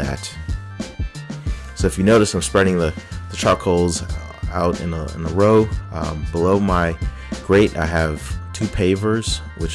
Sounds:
speech, music

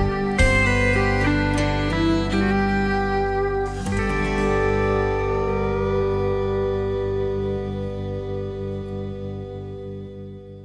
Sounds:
echo, music

